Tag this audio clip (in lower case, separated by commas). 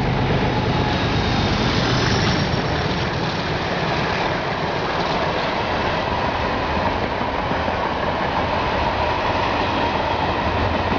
train, rail transport, train wagon, clickety-clack